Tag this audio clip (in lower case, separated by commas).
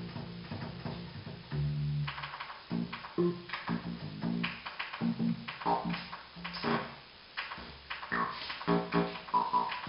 keyboard (musical), piano, music, musical instrument